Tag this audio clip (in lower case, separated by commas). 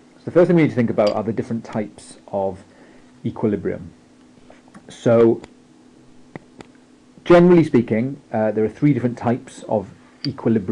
speech